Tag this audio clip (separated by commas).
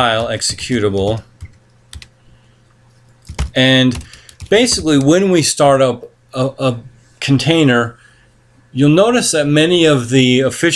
Speech